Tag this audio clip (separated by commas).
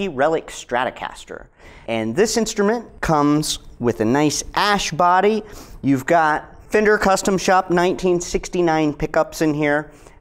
Speech